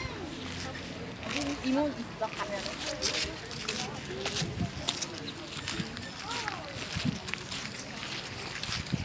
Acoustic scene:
park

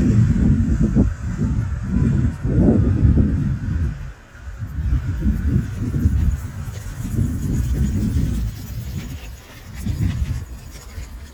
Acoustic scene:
residential area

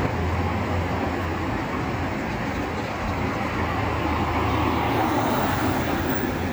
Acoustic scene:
street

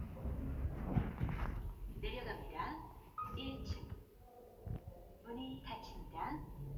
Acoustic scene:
elevator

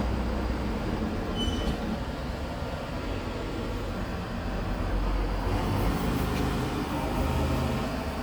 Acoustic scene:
residential area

